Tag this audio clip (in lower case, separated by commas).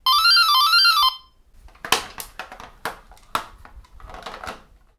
home sounds, alarm, doorbell, door